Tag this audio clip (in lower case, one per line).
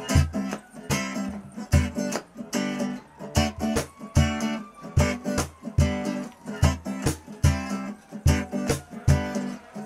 music